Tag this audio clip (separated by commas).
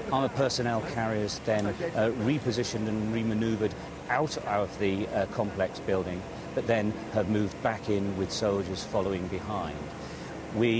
Speech